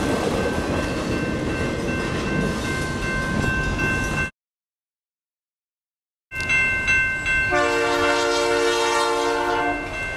Railroad crossing bells followed by a train horn ending with more crossing bells